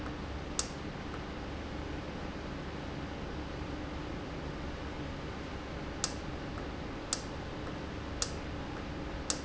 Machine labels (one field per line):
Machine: valve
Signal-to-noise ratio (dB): -6 dB